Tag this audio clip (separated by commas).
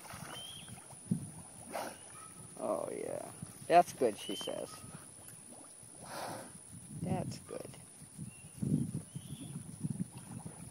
Speech